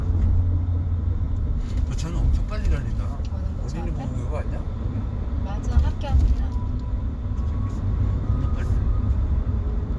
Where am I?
in a car